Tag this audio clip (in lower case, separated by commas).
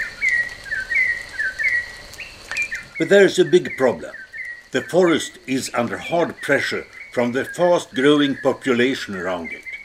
speech